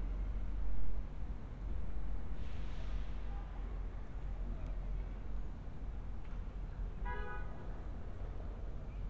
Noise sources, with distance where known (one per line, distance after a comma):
car horn, far